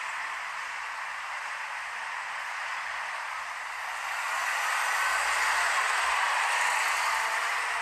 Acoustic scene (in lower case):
street